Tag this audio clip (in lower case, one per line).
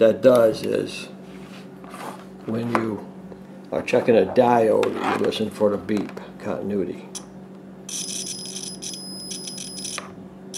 speech